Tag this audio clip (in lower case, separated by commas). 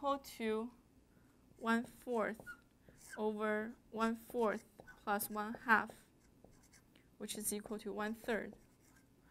inside a large room or hall, speech